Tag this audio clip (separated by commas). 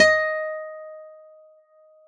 Acoustic guitar, Musical instrument, Music, Plucked string instrument, Guitar